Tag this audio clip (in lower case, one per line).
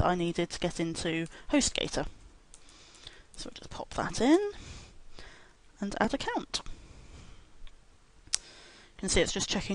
speech